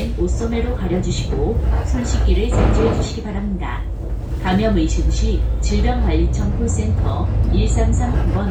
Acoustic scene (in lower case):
bus